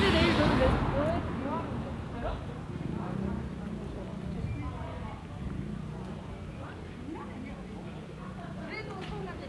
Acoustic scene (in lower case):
residential area